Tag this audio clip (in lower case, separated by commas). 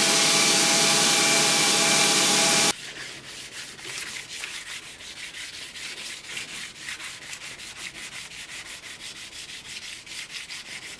forging swords